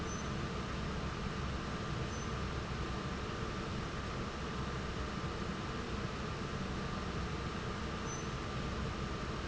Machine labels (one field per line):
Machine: fan